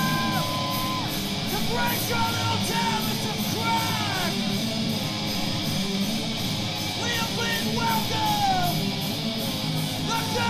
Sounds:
music, punk rock, speech

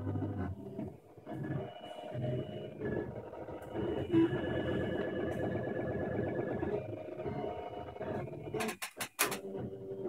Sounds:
printer

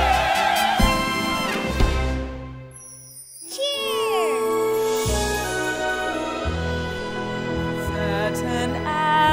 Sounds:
speech, music

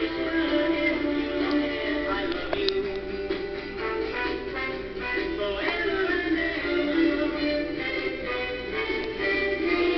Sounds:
music

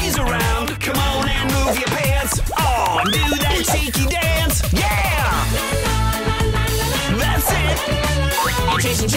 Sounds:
music, funny music

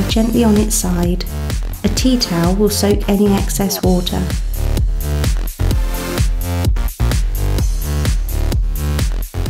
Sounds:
music, speech

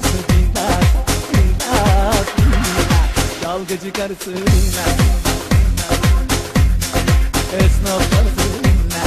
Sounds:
electronic music, techno, music

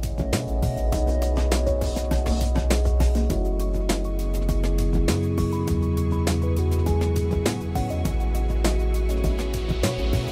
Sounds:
music

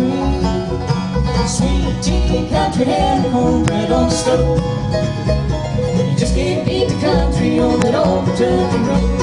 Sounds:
banjo, music, guitar

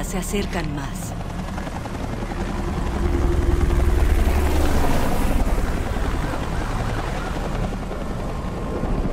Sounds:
speech, vehicle

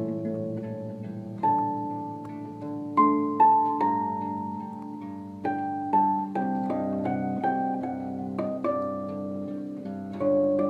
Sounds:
music, harp, playing harp

